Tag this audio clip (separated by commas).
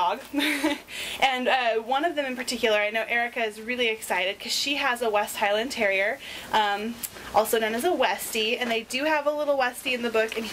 Speech